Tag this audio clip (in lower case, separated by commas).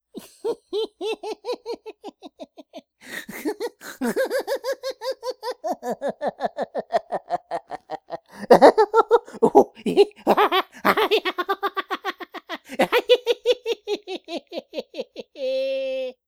human voice, laughter